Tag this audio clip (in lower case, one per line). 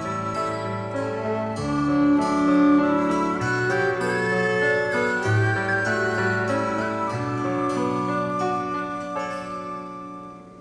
music